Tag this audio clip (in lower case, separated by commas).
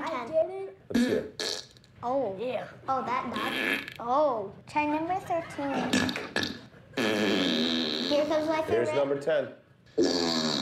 people farting